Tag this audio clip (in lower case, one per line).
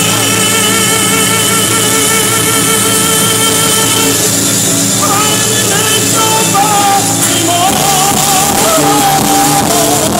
music
choir
male singing